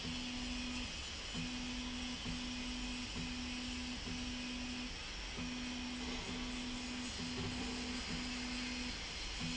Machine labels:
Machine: slide rail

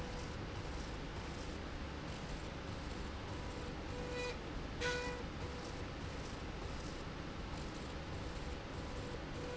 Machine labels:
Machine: slide rail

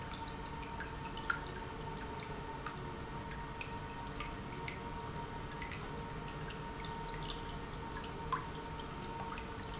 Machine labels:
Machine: pump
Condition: normal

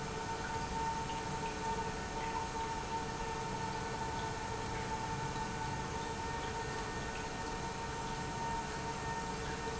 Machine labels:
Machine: pump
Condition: normal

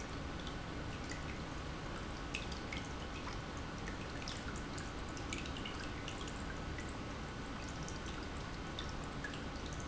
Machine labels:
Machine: pump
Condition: normal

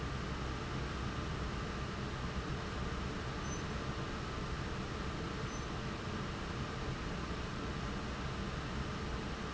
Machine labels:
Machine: fan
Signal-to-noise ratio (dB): -6 dB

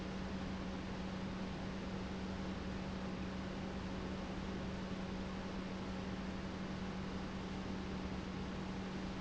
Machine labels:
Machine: pump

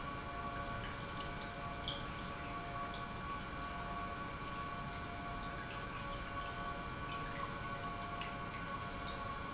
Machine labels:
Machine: pump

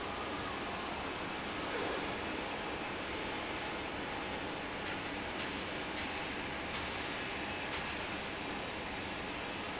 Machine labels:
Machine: fan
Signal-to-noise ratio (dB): -6 dB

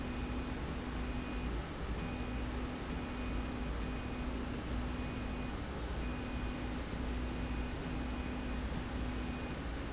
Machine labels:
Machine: slide rail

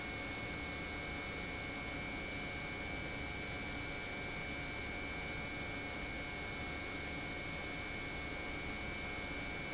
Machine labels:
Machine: pump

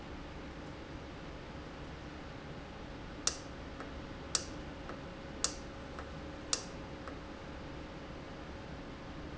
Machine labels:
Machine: valve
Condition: normal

